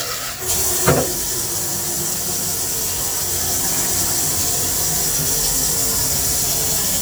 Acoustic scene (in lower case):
kitchen